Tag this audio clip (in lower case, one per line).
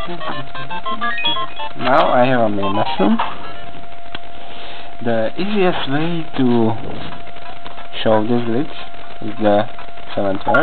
speech
music
inside a small room